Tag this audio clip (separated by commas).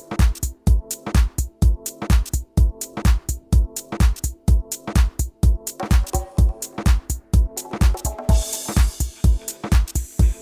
Music